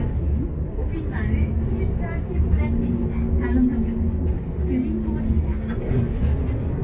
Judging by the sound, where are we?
on a bus